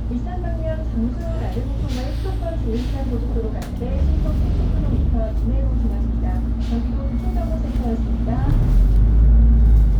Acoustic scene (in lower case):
bus